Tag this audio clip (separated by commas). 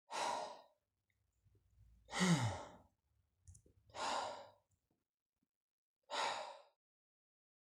Breathing, Respiratory sounds